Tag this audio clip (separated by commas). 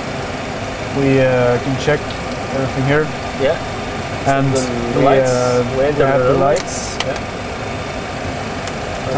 Heavy engine (low frequency), Speech